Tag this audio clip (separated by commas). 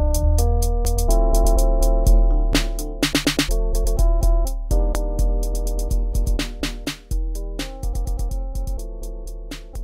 Music, Hip hop music